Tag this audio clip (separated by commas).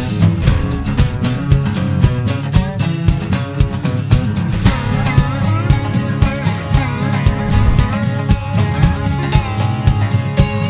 Music